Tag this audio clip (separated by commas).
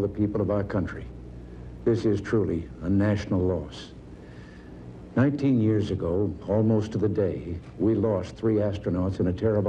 Speech